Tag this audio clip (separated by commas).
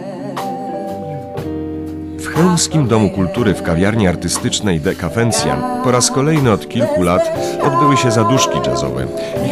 Music, Speech